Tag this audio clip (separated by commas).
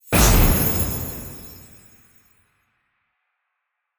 Boom, Explosion